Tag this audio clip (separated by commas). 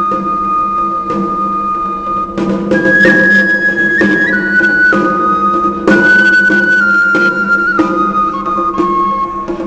playing flute, Drum, Percussion, woodwind instrument, Flute